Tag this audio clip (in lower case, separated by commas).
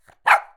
bark, dog, domestic animals, animal